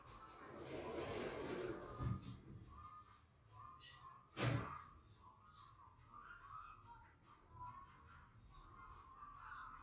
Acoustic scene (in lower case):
elevator